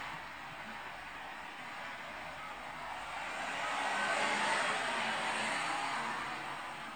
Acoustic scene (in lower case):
street